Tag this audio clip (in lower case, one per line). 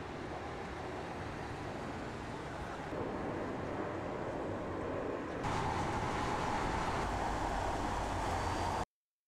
vehicle
wind
car